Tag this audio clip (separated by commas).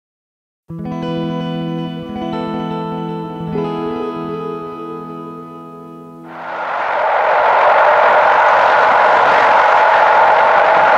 Train, Vehicle, Rail transport